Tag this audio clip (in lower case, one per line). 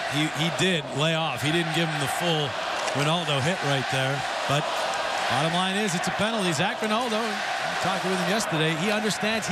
speech